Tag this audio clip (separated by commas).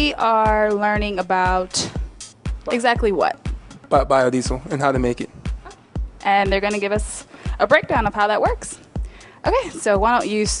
Speech, Music